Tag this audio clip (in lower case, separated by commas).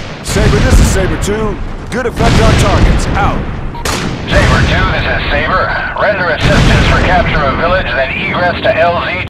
speech